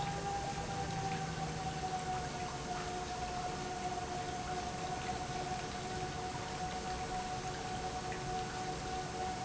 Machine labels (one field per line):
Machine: pump